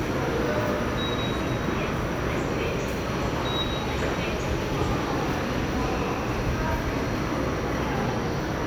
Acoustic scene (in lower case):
subway station